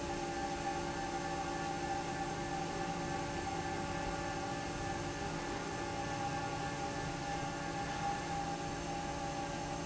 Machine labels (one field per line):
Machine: fan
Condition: normal